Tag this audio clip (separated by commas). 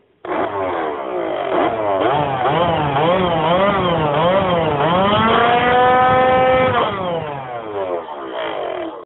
Car, Vehicle, revving